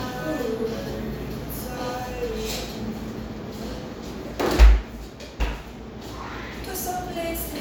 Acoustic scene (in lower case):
cafe